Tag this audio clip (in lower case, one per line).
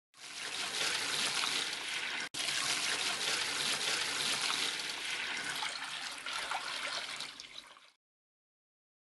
water tap
water